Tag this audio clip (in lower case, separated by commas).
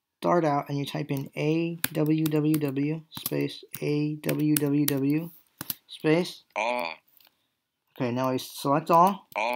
tap, speech